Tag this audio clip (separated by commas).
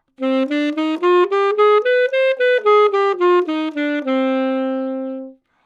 woodwind instrument, Musical instrument, Music